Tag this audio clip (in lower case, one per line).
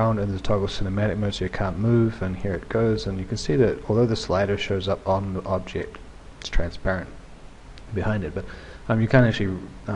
speech